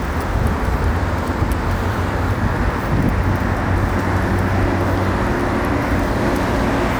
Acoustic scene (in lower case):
street